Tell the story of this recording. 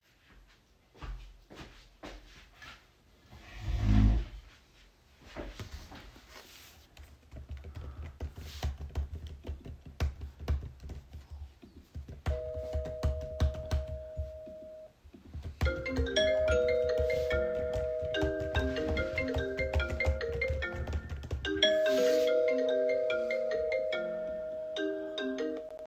While I was typing, the doorbell rang, and almost immediately after, my phone started ringing as well, with all three sounds overlapping.